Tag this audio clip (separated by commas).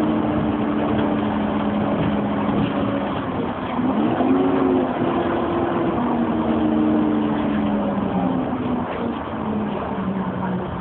Bus, Vehicle